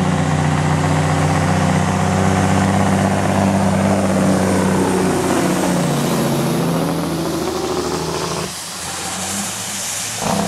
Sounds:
Motor vehicle (road), Medium engine (mid frequency), Truck, Vehicle

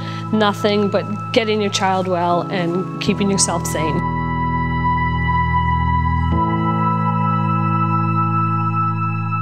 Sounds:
Speech, Music

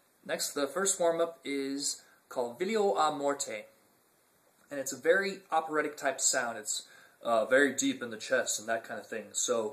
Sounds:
Speech

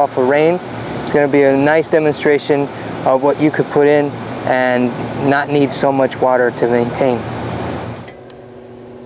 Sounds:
outside, urban or man-made, Speech

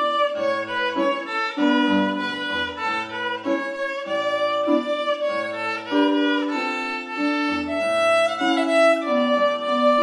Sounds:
Musical instrument, fiddle, Music

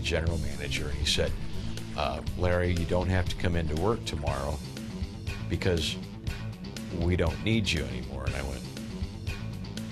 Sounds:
Rock and roll, Speech, Music

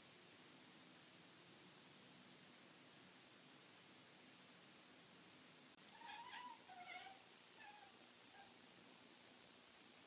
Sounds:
Domestic animals, Cat, Animal

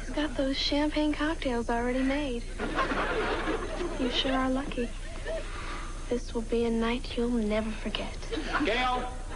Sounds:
Speech

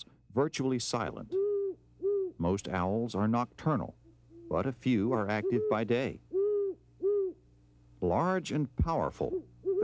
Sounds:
owl hooting, Hoot, Owl

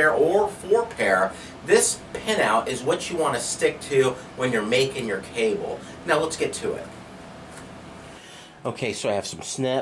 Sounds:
Speech

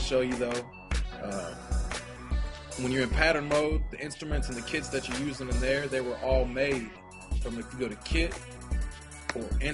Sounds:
Speech, Music

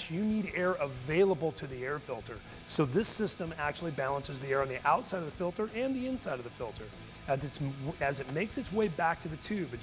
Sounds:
Music, Speech

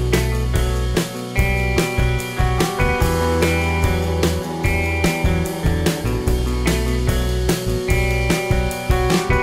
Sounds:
Music

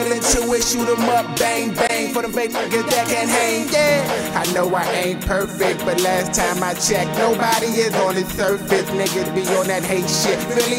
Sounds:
Independent music, Music

